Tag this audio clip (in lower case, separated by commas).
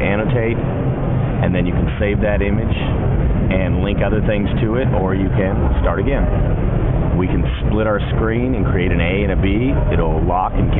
speech